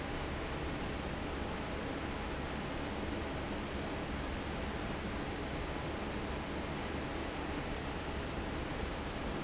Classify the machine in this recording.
fan